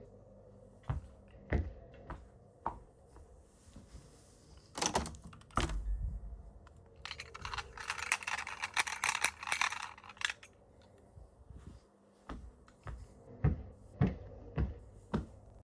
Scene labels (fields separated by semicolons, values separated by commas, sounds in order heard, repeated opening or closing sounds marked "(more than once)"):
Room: living room; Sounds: footsteps, window, keys